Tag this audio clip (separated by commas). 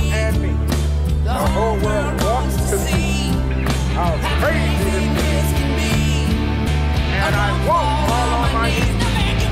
Music